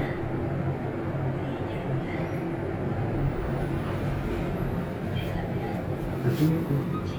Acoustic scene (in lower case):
elevator